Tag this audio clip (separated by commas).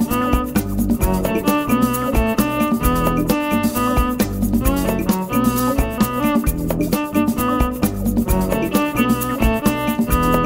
Music